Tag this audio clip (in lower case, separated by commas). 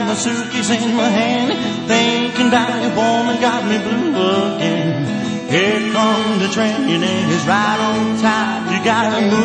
music